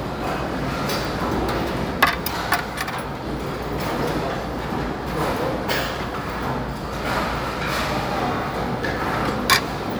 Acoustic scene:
restaurant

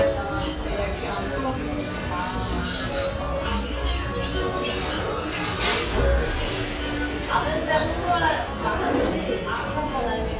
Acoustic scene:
cafe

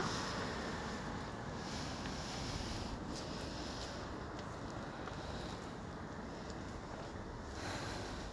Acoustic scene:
street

